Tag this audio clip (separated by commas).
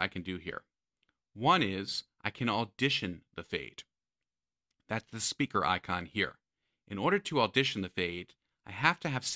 Speech